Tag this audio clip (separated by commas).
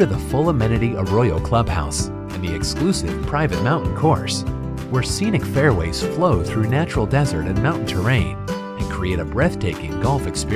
Speech, Music, Country